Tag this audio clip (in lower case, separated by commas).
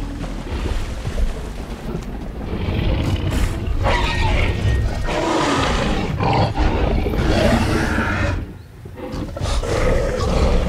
dinosaurs bellowing